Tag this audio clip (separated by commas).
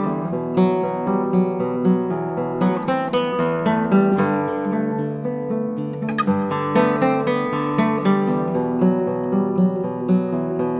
Strum, Music, Acoustic guitar, Musical instrument, Guitar, Plucked string instrument